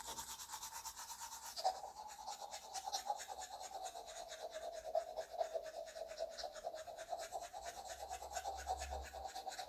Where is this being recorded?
in a restroom